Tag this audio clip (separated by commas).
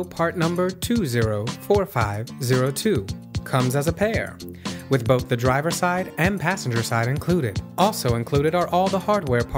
Music, Speech